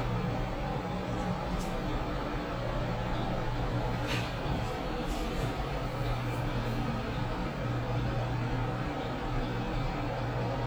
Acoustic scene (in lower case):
elevator